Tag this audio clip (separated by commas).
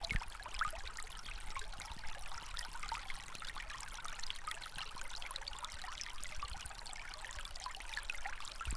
Stream, Water